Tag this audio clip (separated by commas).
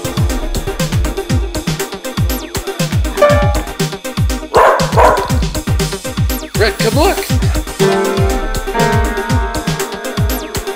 Yip, Music, Speech